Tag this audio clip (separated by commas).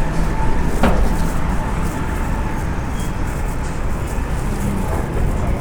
Vehicle, Motor vehicle (road), Truck